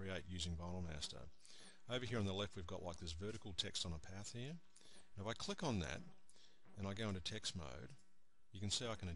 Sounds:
Speech

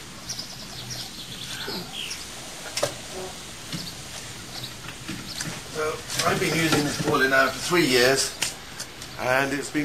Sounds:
tweet, Wood, bird call, Bird

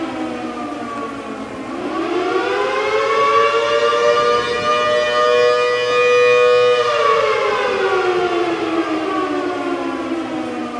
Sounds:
Siren, Civil defense siren

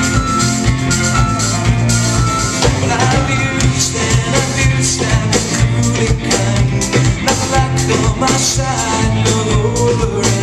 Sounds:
Percussion, Rimshot, Drum kit, Bass drum, Drum

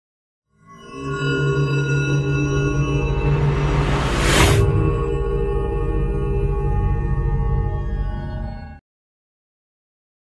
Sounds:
Music

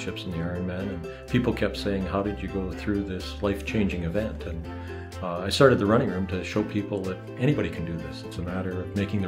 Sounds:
Speech, outside, rural or natural, Music

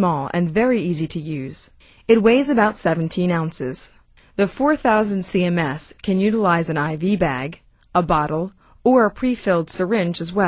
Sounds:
Speech

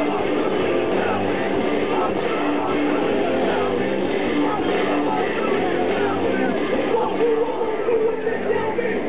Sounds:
Singing, Crowd

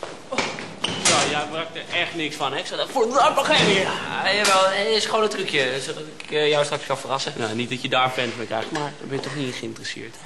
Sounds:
Speech, inside a large room or hall

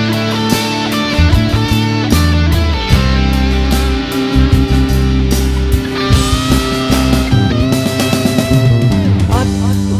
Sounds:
Rock music, Singing, Progressive rock, Music

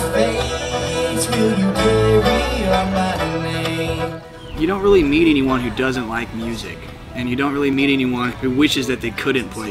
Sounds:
Music, Musical instrument, Speech

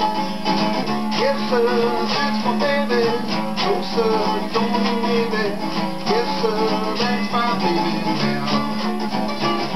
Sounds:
Plucked string instrument, Bowed string instrument, Guitar, Singing, Musical instrument, Music, Country

